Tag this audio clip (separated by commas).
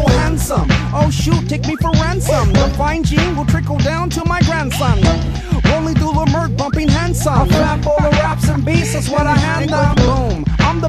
Music